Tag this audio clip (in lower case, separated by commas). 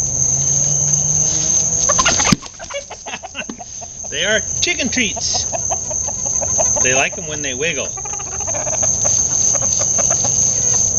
cluck, chicken, fowl